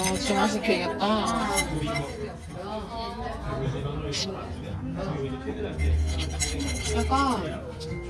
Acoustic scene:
crowded indoor space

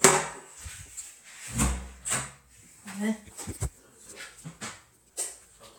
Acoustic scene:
restroom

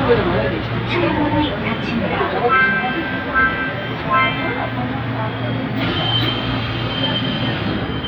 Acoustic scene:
subway train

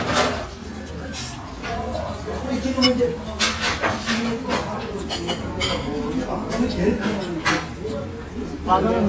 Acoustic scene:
restaurant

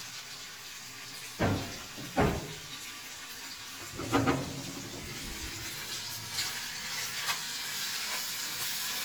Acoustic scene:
kitchen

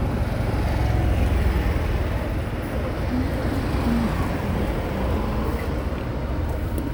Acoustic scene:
street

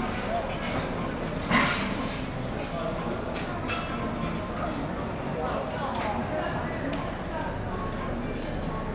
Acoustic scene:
cafe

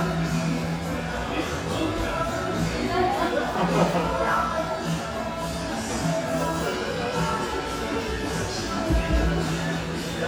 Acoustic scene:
cafe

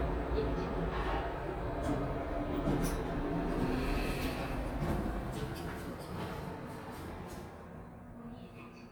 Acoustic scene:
elevator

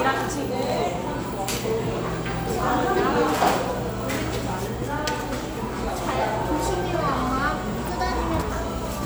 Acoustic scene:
cafe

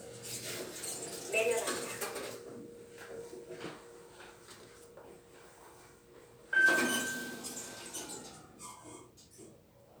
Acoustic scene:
elevator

